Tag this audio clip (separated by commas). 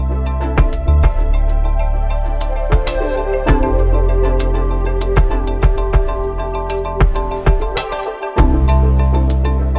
Music